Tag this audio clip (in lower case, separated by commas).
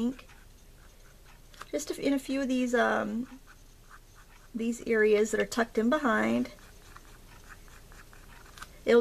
speech, inside a small room, writing